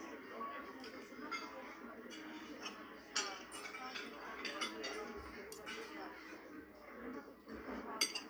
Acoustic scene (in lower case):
restaurant